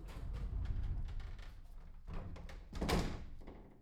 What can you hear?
metal door closing